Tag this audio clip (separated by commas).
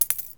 Coin (dropping), home sounds